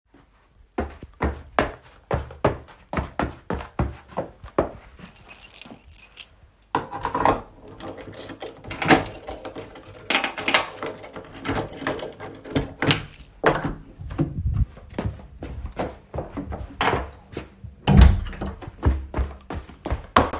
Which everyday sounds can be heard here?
footsteps, keys, door